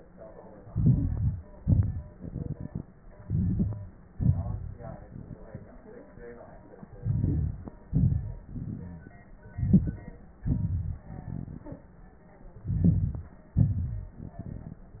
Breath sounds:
0.63-1.46 s: inhalation
0.73-1.40 s: wheeze
1.48-3.09 s: exhalation
1.48-3.09 s: crackles
3.14-4.08 s: inhalation
3.23-3.92 s: wheeze
4.09-5.74 s: exhalation
4.09-5.74 s: crackles
6.90-7.86 s: inhalation
6.90-7.86 s: crackles
7.86-9.31 s: exhalation
8.21-9.10 s: wheeze
9.39-10.44 s: inhalation
9.39-10.44 s: crackles
10.45-11.92 s: exhalation
12.52-13.55 s: inhalation
12.52-13.55 s: crackles
13.54-15.00 s: exhalation

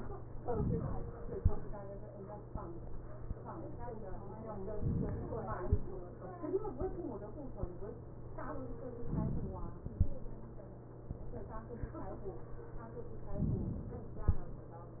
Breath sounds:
0.35-1.36 s: inhalation
4.65-5.66 s: inhalation
8.95-9.96 s: inhalation
13.31-14.32 s: inhalation

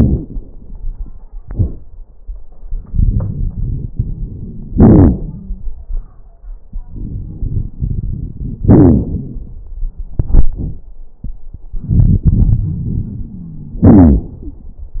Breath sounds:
2.93-4.73 s: inhalation
2.93-4.73 s: crackles
4.72-5.70 s: exhalation
5.24-5.70 s: wheeze
6.87-8.60 s: inhalation
6.87-8.60 s: crackles
8.59-9.43 s: wheeze
8.59-9.63 s: exhalation
11.76-13.85 s: inhalation
13.37-14.65 s: wheeze
13.81-14.86 s: exhalation

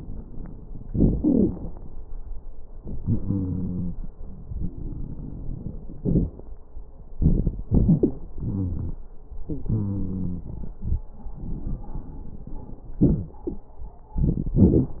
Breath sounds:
0.85-1.16 s: inhalation
0.85-1.16 s: crackles
1.20-1.51 s: exhalation
1.20-1.51 s: wheeze
2.83-4.05 s: inhalation
3.01-4.03 s: wheeze
5.99-6.34 s: exhalation
5.99-6.34 s: crackles
7.16-7.66 s: inhalation
7.16-7.66 s: crackles
7.73-8.24 s: exhalation
7.73-8.24 s: crackles
8.40-8.97 s: inhalation
8.40-8.97 s: wheeze
9.45-10.51 s: wheeze
9.45-11.10 s: exhalation
13.00-13.38 s: wheeze
14.21-14.58 s: crackles
14.23-14.61 s: inhalation
14.61-14.98 s: exhalation
14.61-14.98 s: crackles

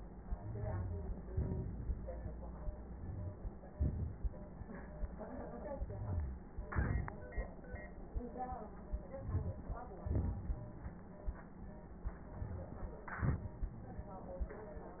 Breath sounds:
0.17-1.25 s: inhalation
0.17-1.25 s: crackles
1.25-2.85 s: exhalation
1.25-2.85 s: crackles
2.85-3.72 s: inhalation
2.85-3.72 s: crackles
3.74-4.62 s: exhalation
3.74-4.62 s: crackles
5.83-6.50 s: inhalation
5.83-6.50 s: wheeze
6.50-7.62 s: exhalation
6.50-7.62 s: crackles
9.03-9.94 s: inhalation
9.03-9.94 s: crackles
9.96-11.06 s: exhalation
9.96-11.06 s: crackles

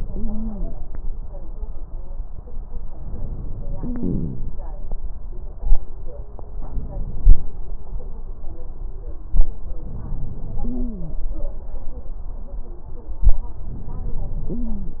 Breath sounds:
0.00-0.66 s: stridor
2.96-4.48 s: inhalation
3.78-4.44 s: wheeze
6.67-7.47 s: inhalation
9.84-10.64 s: inhalation
10.68-11.18 s: stridor
13.63-14.54 s: inhalation
14.54-15.00 s: stridor

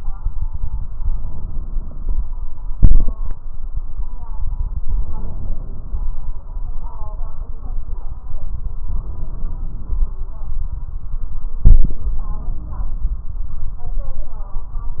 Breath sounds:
0.92-2.20 s: inhalation
2.77-3.34 s: exhalation
4.78-6.06 s: inhalation
8.94-10.21 s: inhalation
11.69-13.04 s: inhalation

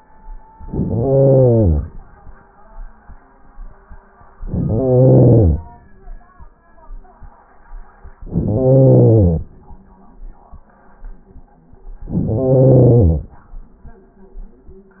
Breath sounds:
0.56-2.02 s: inhalation
4.38-5.96 s: inhalation
8.23-9.58 s: inhalation
12.06-13.41 s: inhalation

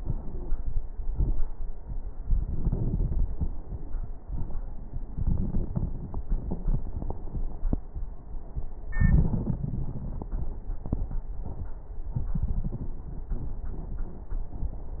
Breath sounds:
2.23-3.73 s: inhalation
2.23-3.73 s: crackles
4.24-4.63 s: exhalation
4.24-4.63 s: crackles
9.04-10.67 s: inhalation
9.04-10.67 s: crackles
11.41-11.79 s: exhalation
11.41-11.79 s: crackles

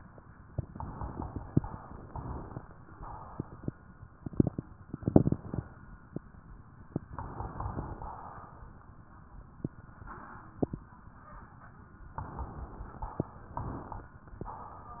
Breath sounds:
0.52-2.56 s: inhalation
2.90-4.08 s: exhalation
7.07-7.97 s: inhalation
12.13-13.12 s: inhalation
13.12-13.65 s: exhalation
14.37-15.00 s: exhalation

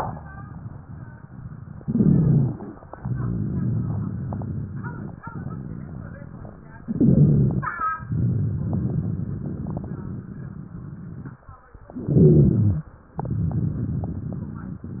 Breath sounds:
1.81-2.73 s: inhalation
1.81-2.73 s: rhonchi
2.91-6.73 s: exhalation
2.95-6.74 s: rhonchi
6.85-7.77 s: inhalation
6.85-7.77 s: rhonchi
7.93-11.45 s: exhalation
7.97-11.47 s: rhonchi
11.95-12.87 s: inhalation
11.95-12.87 s: rhonchi
13.13-15.00 s: exhalation
13.15-15.00 s: rhonchi

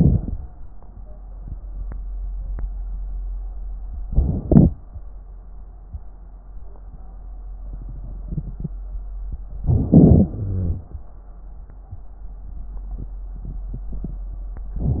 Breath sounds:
0.00-0.41 s: inhalation
4.08-4.74 s: inhalation
9.60-10.32 s: inhalation
10.30-10.95 s: exhalation
10.30-10.95 s: wheeze
14.77-15.00 s: inhalation

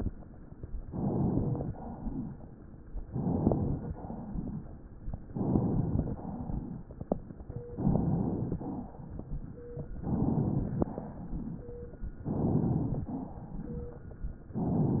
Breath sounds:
0.84-1.67 s: inhalation
1.63-2.65 s: exhalation
3.04-3.93 s: inhalation
3.04-3.93 s: crackles
3.94-4.84 s: exhalation
5.31-6.17 s: inhalation
6.14-6.87 s: exhalation
6.21-7.78 s: crackles
7.78-8.63 s: inhalation
8.60-9.69 s: exhalation
8.60-9.69 s: crackles
10.03-10.82 s: inhalation
10.84-11.85 s: exhalation
12.27-13.10 s: inhalation
13.10-14.20 s: exhalation

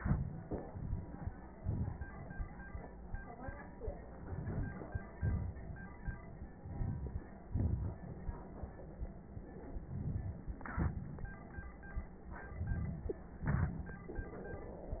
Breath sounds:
4.08-5.15 s: inhalation
4.08-5.15 s: crackles
5.15-6.57 s: exhalation
5.17-6.57 s: crackles
6.57-7.41 s: inhalation
7.43-9.25 s: exhalation
7.43-9.25 s: crackles
9.25-10.54 s: inhalation
10.58-12.46 s: exhalation
10.60-12.41 s: crackles
12.43-13.28 s: inhalation
12.43-13.28 s: crackles
13.28-14.06 s: exhalation
13.28-14.06 s: crackles

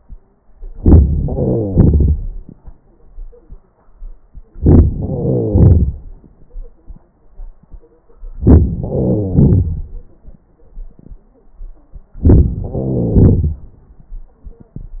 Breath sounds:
0.53-1.09 s: inhalation
1.11-2.60 s: exhalation
4.49-4.98 s: inhalation
4.97-6.88 s: exhalation
8.20-8.88 s: inhalation
8.87-10.50 s: exhalation
12.14-12.71 s: inhalation
12.70-14.40 s: exhalation

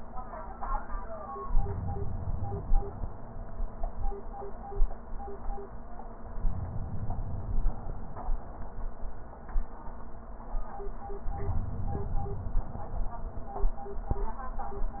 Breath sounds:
1.51-3.08 s: inhalation
6.38-8.16 s: inhalation
11.30-13.08 s: inhalation

